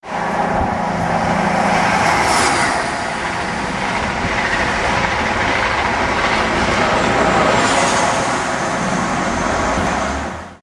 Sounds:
train, rail transport, vehicle

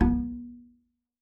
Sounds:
music, musical instrument, bowed string instrument

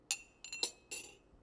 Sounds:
dishes, pots and pans, home sounds, silverware

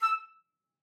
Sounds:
wind instrument, musical instrument, music

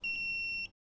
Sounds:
alarm

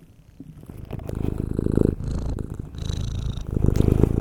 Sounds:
purr, pets, animal, cat

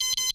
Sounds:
alarm

